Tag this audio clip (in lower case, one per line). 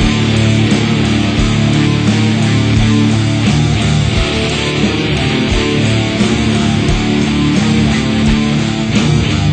music